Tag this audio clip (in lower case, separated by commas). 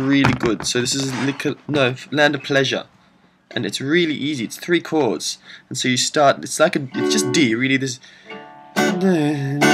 plucked string instrument, music, musical instrument, guitar, speech, acoustic guitar, strum